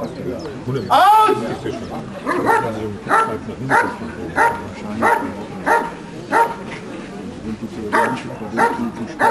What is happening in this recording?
Birds are chirping a man yells and a dog barks intently